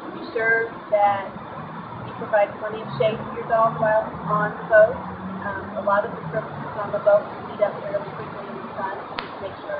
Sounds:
Speech

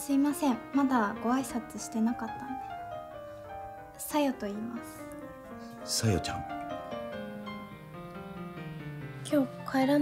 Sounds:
Speech, Music

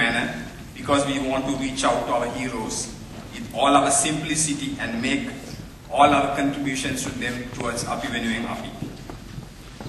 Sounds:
Male speech, monologue, Speech

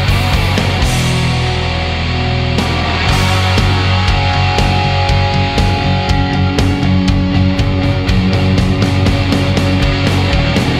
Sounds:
Music

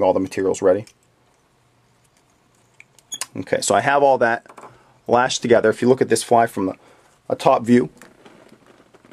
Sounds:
Speech

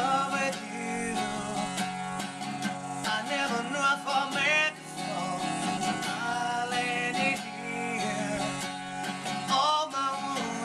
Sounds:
Music, Tender music

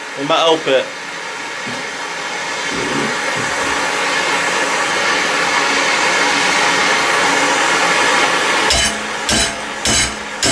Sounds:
Power tool, Tools

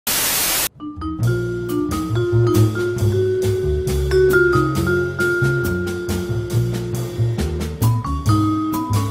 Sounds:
Vibraphone, Music

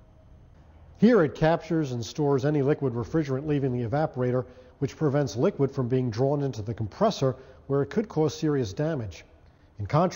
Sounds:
Speech

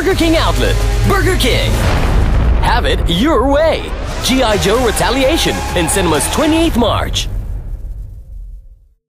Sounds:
Music, Speech, Radio

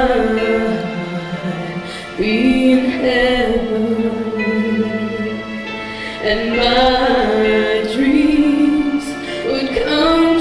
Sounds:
Female singing, Music

